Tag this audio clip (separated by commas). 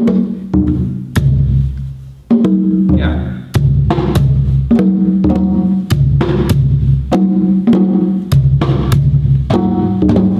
Music, inside a small room, Speech, Drum